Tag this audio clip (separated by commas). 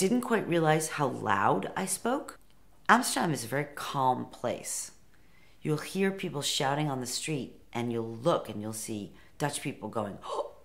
Speech